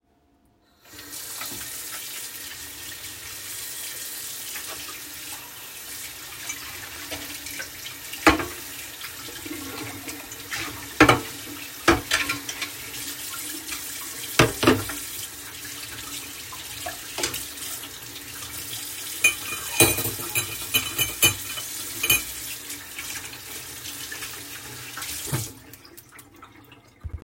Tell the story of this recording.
I opened the tap, water running, took the cup and fork, washed them and closed the tap (overlap)